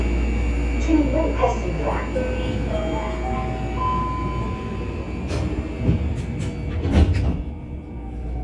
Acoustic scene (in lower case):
subway train